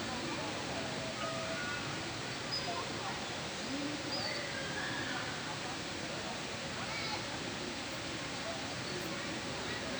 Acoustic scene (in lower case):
park